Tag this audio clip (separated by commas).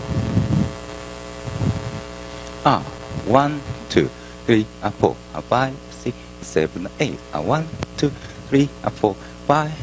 Speech